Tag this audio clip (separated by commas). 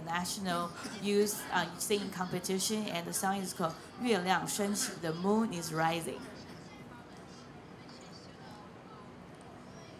Speech